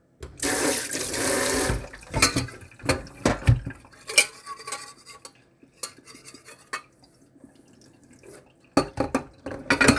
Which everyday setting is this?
kitchen